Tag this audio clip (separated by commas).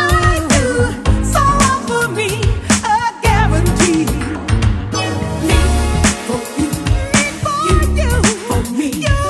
Soul music, Funk, Music